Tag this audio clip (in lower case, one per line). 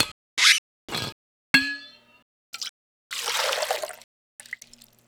liquid